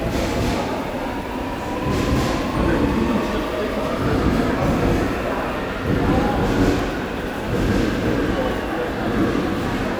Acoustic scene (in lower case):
subway station